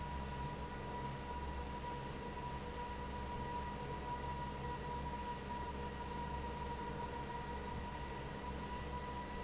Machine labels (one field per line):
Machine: fan